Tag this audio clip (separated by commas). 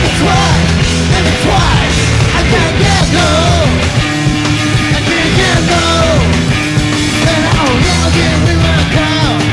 Musical instrument, Music, Plucked string instrument, Guitar